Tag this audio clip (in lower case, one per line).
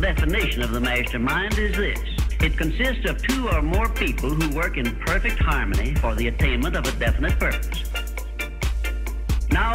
speech
music